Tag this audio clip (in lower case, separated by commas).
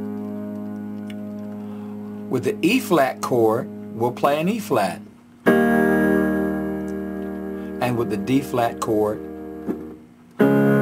music, piano, electric piano, musical instrument, keyboard (musical), speech